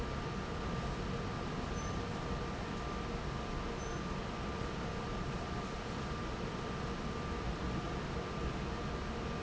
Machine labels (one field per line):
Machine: fan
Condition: normal